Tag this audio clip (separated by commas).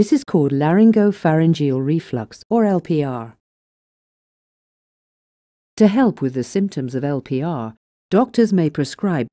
Speech